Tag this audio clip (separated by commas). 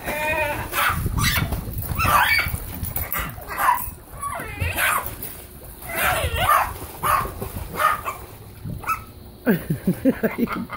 Dog, Bark, Domestic animals